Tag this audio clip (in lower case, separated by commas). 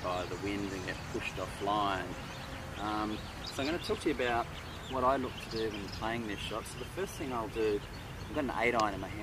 speech